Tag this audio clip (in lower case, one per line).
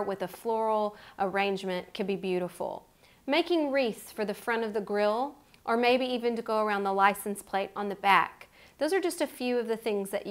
speech